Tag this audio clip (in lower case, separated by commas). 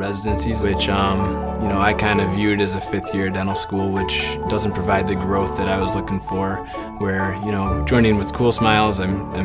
speech, music